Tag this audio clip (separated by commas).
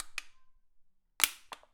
Crushing